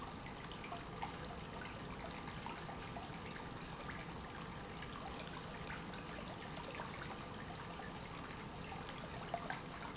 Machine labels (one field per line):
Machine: pump